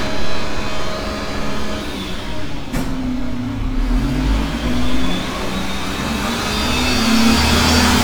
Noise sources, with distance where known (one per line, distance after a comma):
large-sounding engine, near